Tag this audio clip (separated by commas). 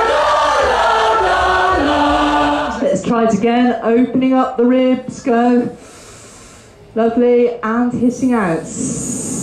Choir, Female singing, Speech, Male singing